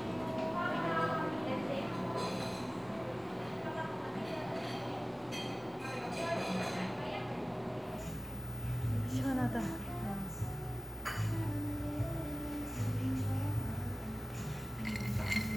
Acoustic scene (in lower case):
cafe